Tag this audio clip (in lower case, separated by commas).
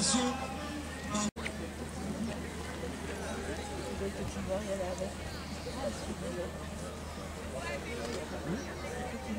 speech